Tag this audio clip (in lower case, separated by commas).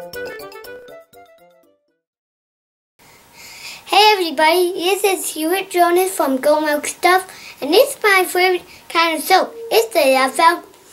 music, speech